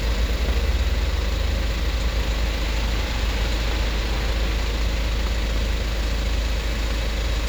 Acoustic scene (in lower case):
street